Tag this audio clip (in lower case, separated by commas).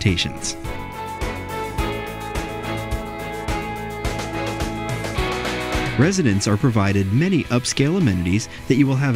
music, speech